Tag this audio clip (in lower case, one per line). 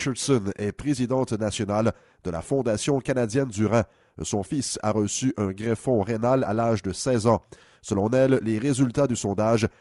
speech